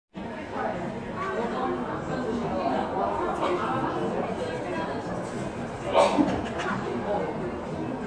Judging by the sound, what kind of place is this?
cafe